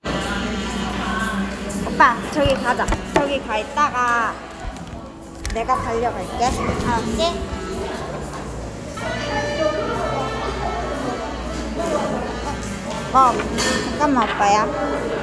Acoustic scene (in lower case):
cafe